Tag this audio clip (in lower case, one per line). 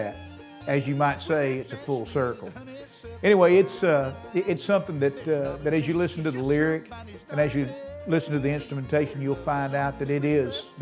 music
bluegrass
speech